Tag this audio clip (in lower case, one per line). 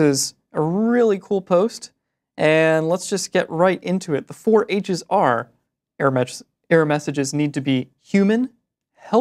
speech